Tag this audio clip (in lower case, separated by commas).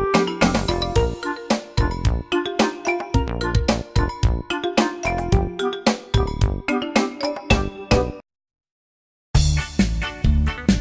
music